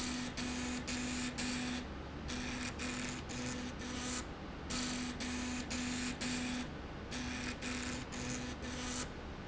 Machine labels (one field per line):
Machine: slide rail